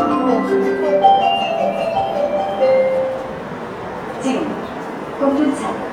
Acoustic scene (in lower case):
subway station